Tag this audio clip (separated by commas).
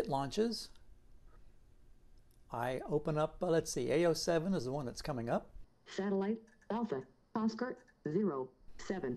Speech